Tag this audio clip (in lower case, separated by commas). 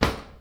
drawer open or close, home sounds